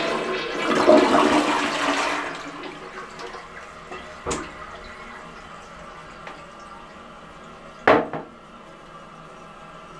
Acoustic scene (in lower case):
restroom